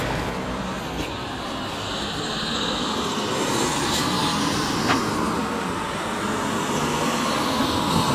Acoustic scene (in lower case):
street